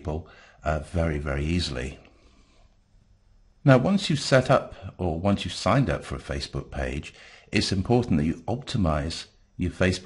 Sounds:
Speech

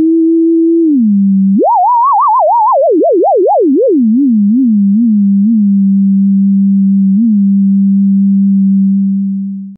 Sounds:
Music

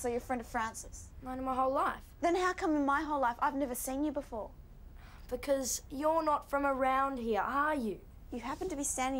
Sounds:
Female speech

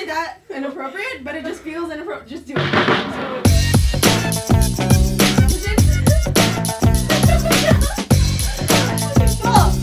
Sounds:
Music, Speech

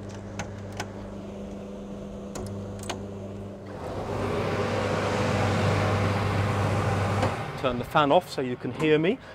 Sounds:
Speech, outside, rural or natural

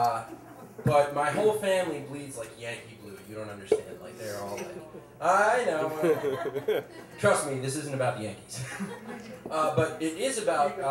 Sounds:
Speech

